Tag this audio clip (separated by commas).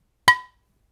Domestic sounds, dishes, pots and pans